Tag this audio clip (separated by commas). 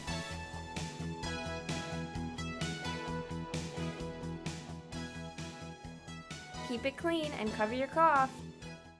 Music, Speech